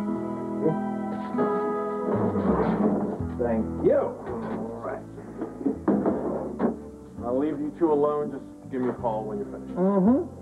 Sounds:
speech, music

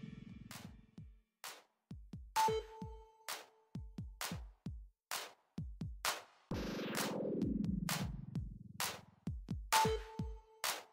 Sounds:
drum machine, music

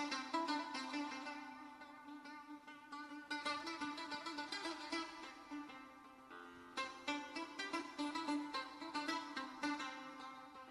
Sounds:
music

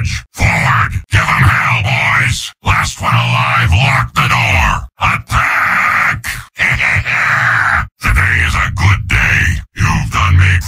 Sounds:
speech

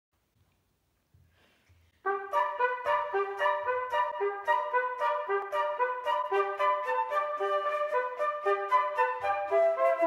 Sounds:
playing cornet

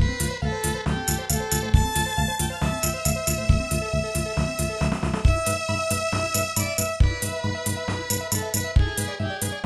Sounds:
soundtrack music, music

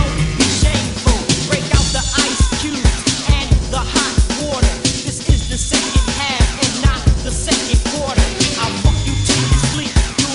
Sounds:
music

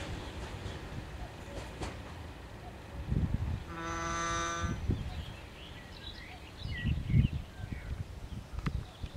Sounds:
railroad car, vehicle, train, outside, rural or natural, rail transport

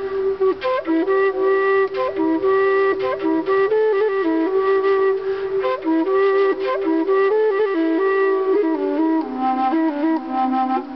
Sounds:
music, flute

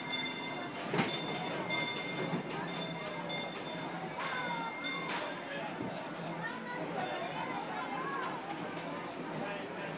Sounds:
engine, vehicle, speech

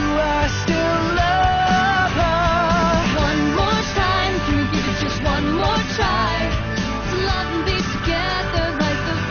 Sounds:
male singing, music, female singing

